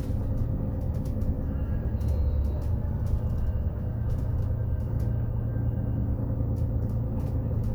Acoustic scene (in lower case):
bus